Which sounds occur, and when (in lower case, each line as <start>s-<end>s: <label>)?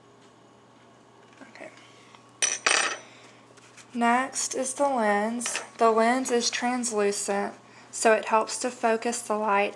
0.2s-0.3s: tick
1.4s-1.7s: female speech
1.6s-2.2s: breathing
1.7s-1.8s: tick
2.2s-2.3s: tick
2.4s-3.0s: tools
2.9s-3.5s: breathing
3.2s-3.3s: tick
3.9s-7.6s: female speech
4.7s-4.8s: tick
5.4s-5.6s: tools
7.2s-7.4s: tick
7.6s-7.9s: breathing
7.9s-9.7s: female speech